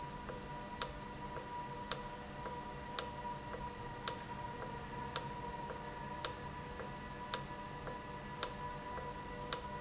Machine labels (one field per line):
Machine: valve